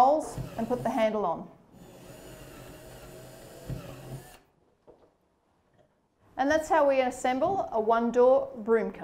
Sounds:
speech, woman speaking

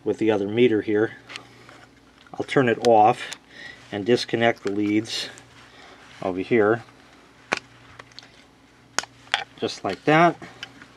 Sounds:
speech

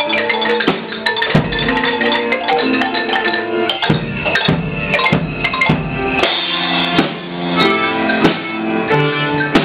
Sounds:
playing marimba

